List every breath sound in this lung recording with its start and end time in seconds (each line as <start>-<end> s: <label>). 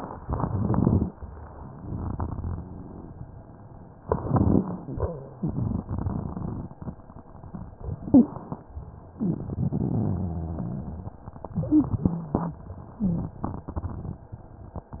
0.19-1.08 s: inhalation
0.19-1.08 s: crackles
1.71-3.47 s: crackles
4.06-4.88 s: inhalation
4.06-4.88 s: crackles
5.39-6.83 s: crackles
7.95-8.37 s: wheeze
7.95-8.67 s: inhalation
9.15-9.57 s: wheeze
9.15-11.20 s: crackles
11.55-12.45 s: inhalation
11.67-11.99 s: wheeze
12.98-13.41 s: wheeze
12.98-14.30 s: crackles